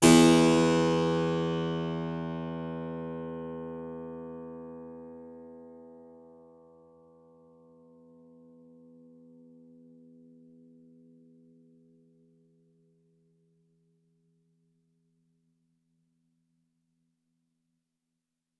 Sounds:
Music, Keyboard (musical), Musical instrument

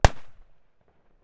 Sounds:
Explosion, Fireworks

